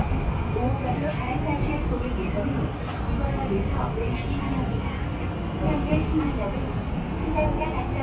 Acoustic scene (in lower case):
subway train